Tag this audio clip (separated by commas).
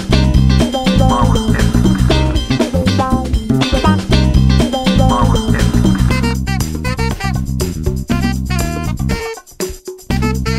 Music